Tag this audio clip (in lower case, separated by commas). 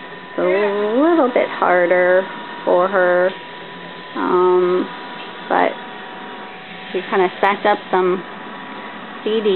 speech